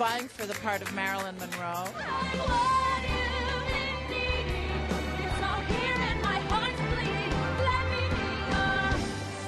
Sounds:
Music, Speech

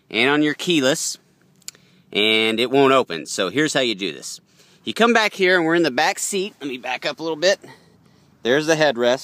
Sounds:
Speech

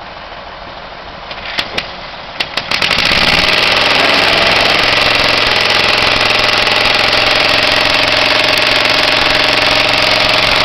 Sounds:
Vehicle, Engine

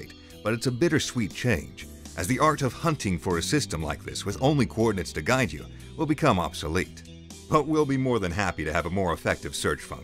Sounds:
Music, Speech

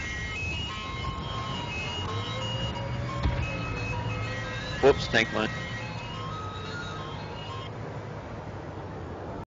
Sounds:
Speech, Music

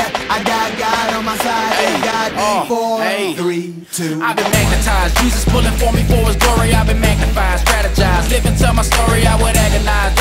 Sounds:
Music

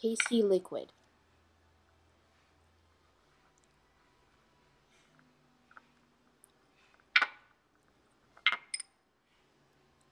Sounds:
Speech, inside a small room

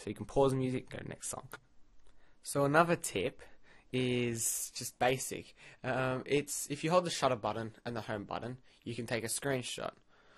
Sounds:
Speech

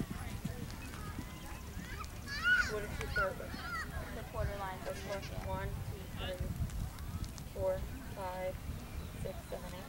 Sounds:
Speech, Animal, Clip-clop

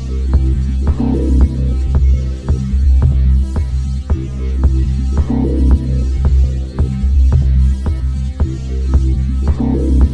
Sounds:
Music

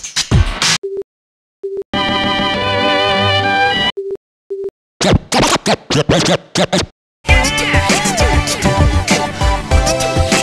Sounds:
Music, Ringtone

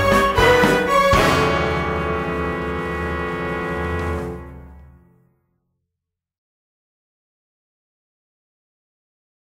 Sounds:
Music

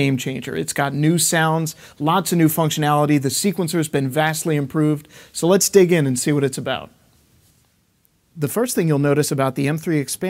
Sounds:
Speech

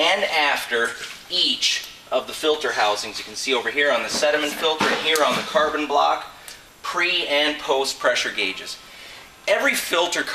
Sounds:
Speech

